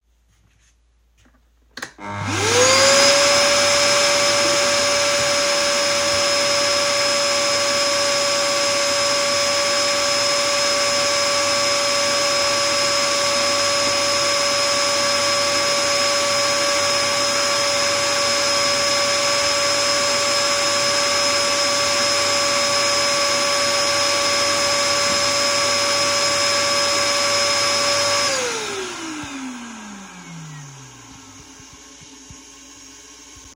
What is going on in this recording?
I turned on the vacuum cleaner, then vacuum. Finally, I walked to the toilet to flush the toilet